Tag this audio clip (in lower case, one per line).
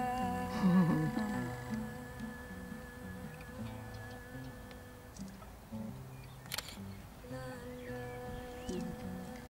animal
music